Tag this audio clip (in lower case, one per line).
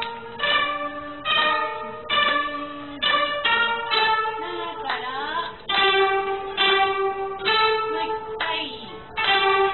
musical instrument
plucked string instrument
music
hands